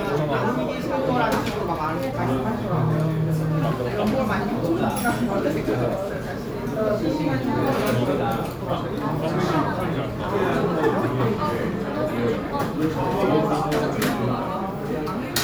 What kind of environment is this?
restaurant